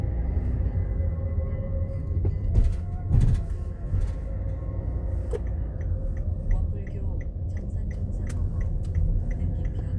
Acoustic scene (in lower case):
car